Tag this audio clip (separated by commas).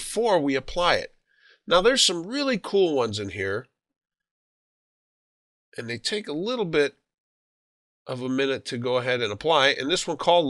Speech